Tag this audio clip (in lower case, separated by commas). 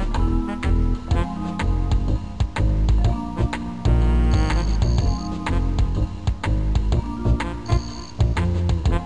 music, rhythm and blues